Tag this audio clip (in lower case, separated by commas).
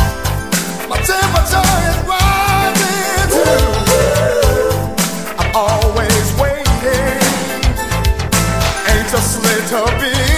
music